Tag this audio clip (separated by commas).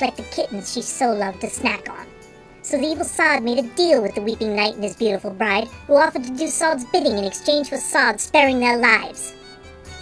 Speech, Music